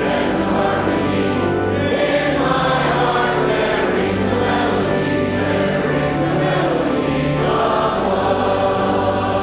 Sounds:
Male singing, Choir, Music

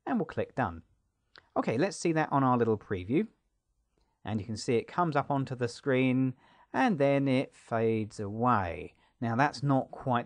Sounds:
Speech, Narration

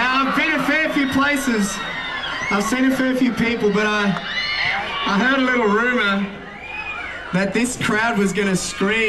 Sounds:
Speech

